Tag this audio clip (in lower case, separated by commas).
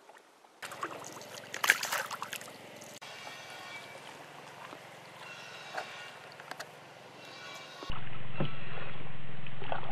canoe, water vehicle